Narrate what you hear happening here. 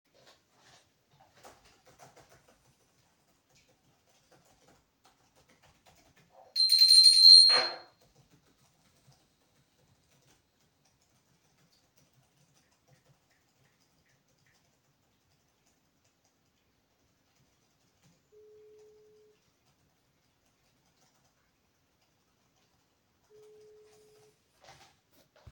While I type on my computer a bell and then a phone is ringing.